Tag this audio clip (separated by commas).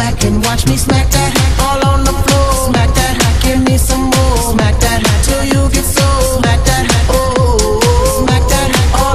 Music, Techno, Electronic music